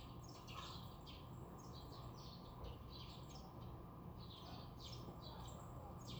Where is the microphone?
in a residential area